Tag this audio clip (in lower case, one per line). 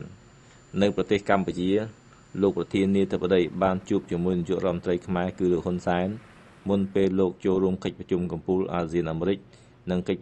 speech